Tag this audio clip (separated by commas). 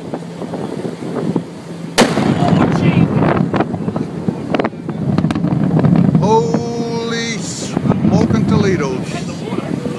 volcano explosion